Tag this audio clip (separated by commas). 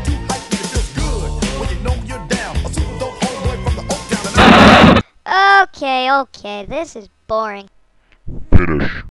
Speech, Music